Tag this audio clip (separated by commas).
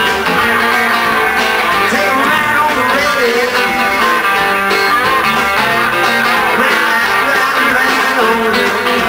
Rock and roll, Guitar, Singing, Music